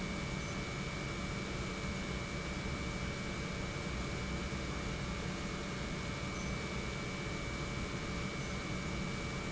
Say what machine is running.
pump